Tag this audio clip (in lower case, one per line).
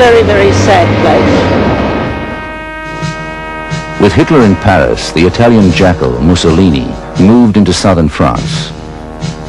speech
music